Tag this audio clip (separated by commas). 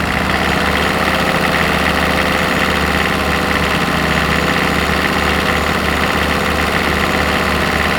Vehicle, Engine